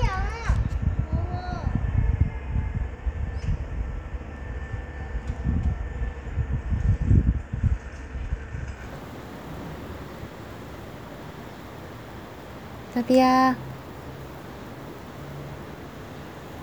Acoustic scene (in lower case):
residential area